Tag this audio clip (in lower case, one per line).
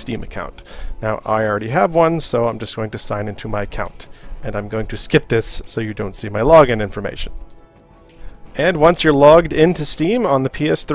speech
music